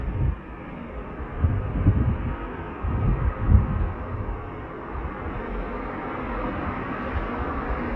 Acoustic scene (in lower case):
street